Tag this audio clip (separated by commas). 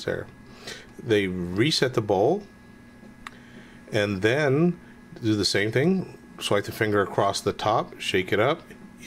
Speech